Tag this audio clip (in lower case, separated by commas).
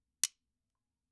home sounds, cutlery